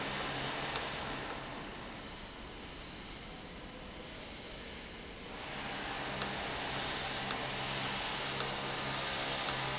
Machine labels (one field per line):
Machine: valve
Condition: normal